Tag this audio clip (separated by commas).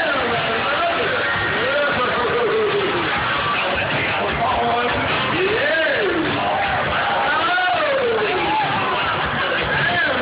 Speech